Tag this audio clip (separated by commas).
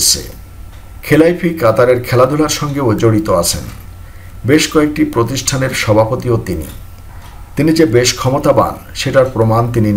striking pool